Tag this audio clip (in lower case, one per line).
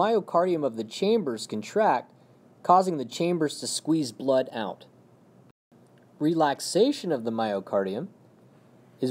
speech